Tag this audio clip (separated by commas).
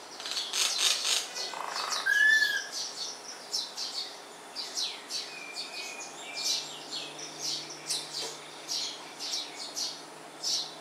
mynah bird singing